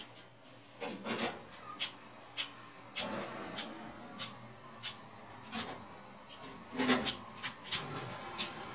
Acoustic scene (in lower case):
kitchen